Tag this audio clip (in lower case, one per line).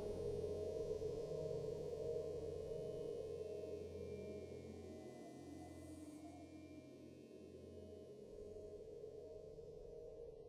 silence